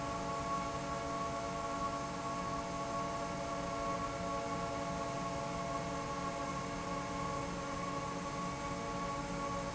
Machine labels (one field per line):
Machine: fan